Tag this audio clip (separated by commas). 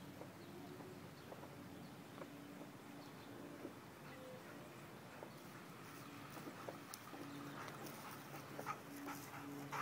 Dog, Whimper (dog), Domestic animals, Animal